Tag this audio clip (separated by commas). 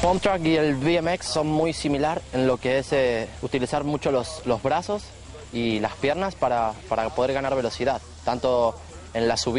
Speech